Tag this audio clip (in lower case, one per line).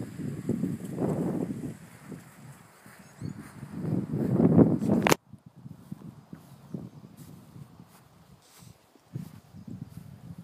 wind